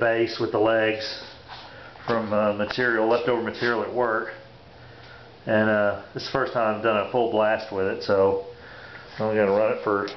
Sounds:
speech

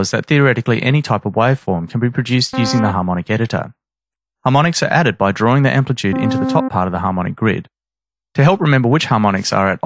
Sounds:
synthesizer, speech synthesizer, speech

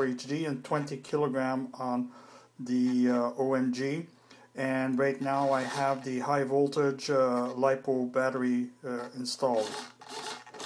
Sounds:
speech, inside a small room

